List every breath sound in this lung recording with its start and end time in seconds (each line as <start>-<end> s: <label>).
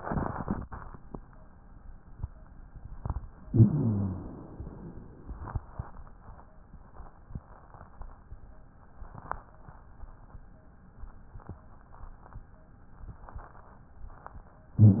3.47-4.32 s: inhalation
3.47-4.32 s: wheeze